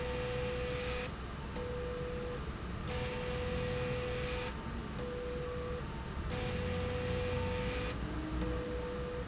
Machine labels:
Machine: slide rail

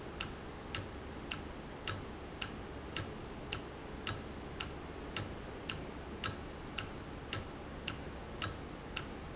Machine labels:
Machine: valve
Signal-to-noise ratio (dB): 0 dB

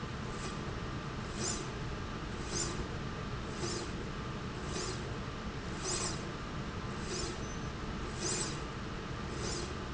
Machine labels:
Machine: slide rail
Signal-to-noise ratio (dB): -6 dB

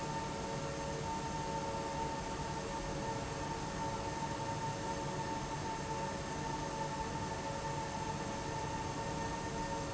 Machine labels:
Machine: fan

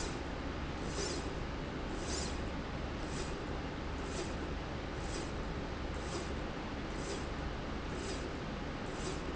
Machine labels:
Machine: slide rail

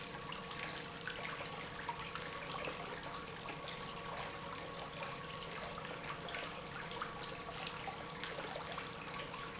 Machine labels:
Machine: pump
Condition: normal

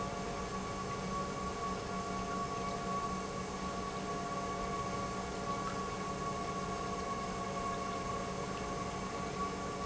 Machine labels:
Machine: pump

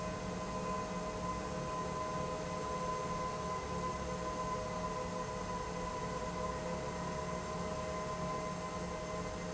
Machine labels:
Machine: pump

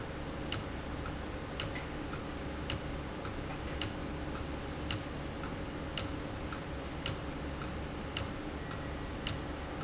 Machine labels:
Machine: valve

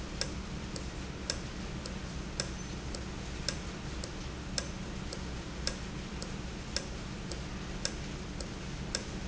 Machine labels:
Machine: valve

